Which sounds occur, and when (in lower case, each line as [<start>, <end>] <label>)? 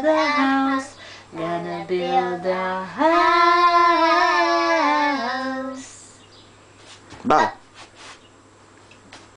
[0.00, 0.89] female singing
[0.00, 9.35] mechanisms
[0.18, 0.92] child singing
[0.97, 1.25] breathing
[1.34, 6.25] child singing
[1.35, 6.19] female singing
[6.15, 6.51] chirp
[6.84, 7.26] walk
[7.28, 7.61] human voice
[7.76, 8.22] surface contact
[8.22, 8.38] chirp
[8.89, 9.01] generic impact sounds
[9.12, 9.31] walk